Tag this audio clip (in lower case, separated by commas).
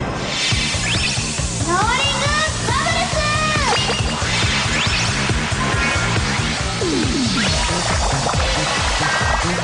speech, music